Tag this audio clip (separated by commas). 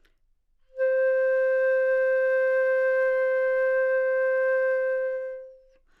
Musical instrument, woodwind instrument, Music